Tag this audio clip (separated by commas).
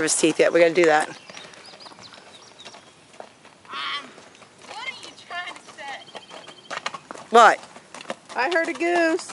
Animal, outside, rural or natural, Horse, Speech